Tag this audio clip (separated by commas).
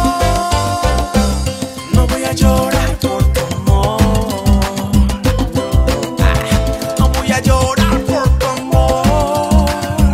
Salsa music, Music of Latin America, Music of Africa, Music